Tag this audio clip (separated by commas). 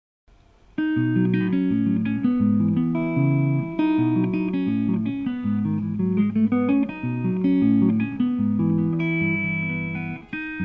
Musical instrument, Guitar, Electric guitar, Plucked string instrument, Bowed string instrument, Music